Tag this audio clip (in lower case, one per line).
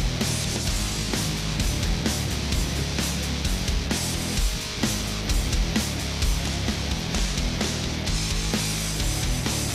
music